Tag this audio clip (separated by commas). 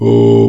Singing, Human voice